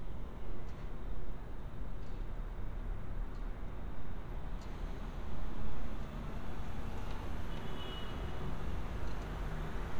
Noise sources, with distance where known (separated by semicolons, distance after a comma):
background noise